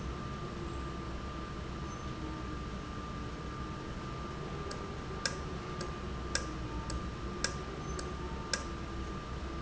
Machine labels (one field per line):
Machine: valve